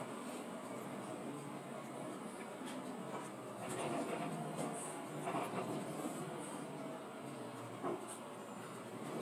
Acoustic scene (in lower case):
bus